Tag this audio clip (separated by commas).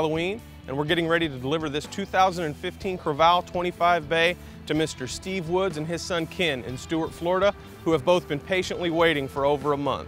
Speech, Music